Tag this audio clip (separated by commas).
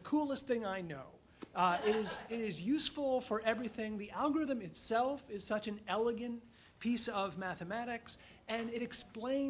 Speech